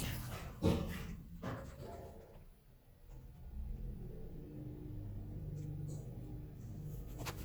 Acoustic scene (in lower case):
elevator